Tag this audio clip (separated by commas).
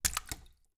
splatter, Liquid